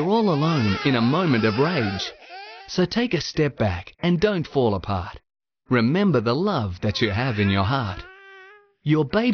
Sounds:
infant cry, Speech

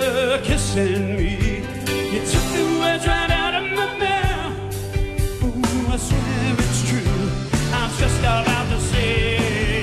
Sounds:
Singing, Music

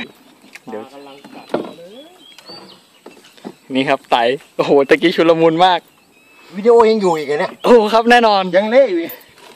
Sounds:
Speech, Animal

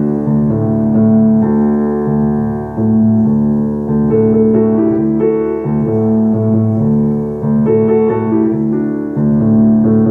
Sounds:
Music

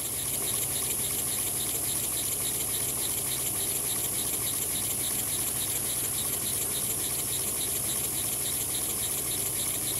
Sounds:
Engine

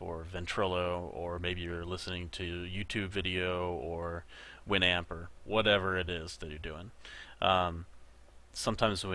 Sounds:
Speech

